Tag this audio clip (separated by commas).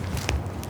footsteps